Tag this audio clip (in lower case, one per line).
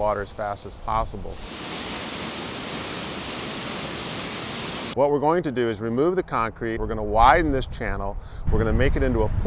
waterfall